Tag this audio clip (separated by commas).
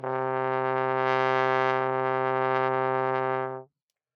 Brass instrument, Music, Musical instrument